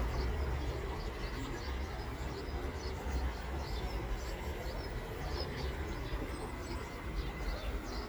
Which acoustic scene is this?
park